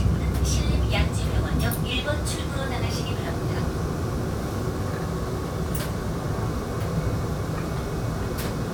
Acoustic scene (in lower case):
subway train